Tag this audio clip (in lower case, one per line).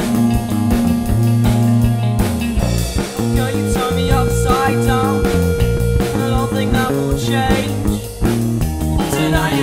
music